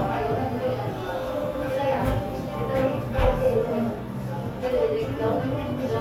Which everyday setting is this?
cafe